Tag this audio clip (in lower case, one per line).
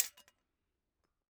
hammer
tools